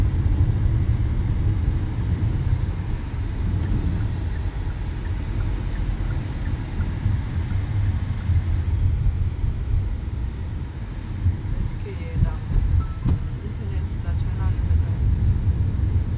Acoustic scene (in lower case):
car